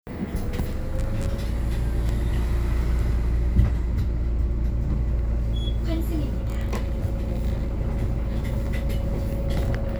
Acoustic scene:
bus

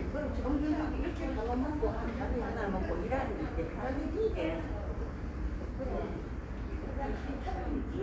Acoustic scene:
subway station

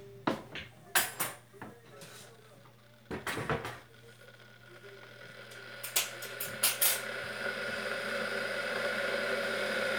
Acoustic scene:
kitchen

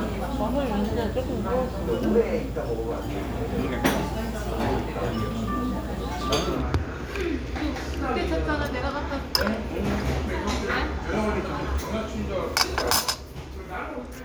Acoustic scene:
restaurant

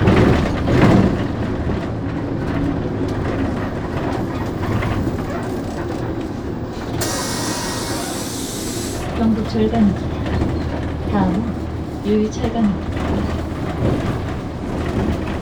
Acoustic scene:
bus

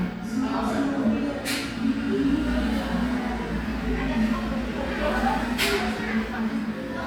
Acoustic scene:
crowded indoor space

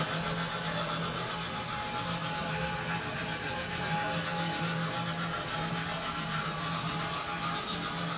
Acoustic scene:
restroom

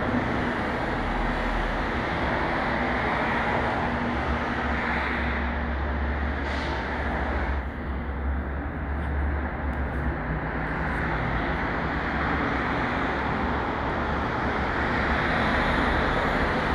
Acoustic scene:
street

